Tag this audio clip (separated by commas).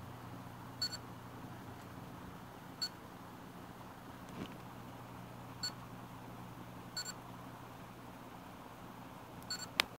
White noise